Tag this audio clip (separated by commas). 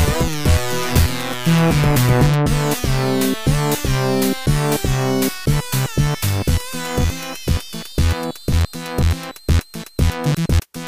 Music